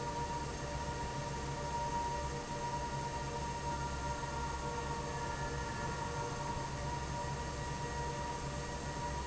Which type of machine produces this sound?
fan